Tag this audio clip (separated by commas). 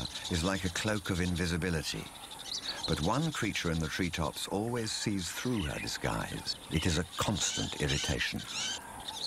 Speech, Bird